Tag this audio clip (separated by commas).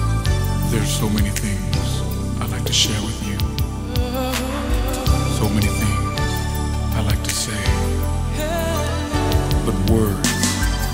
Pop music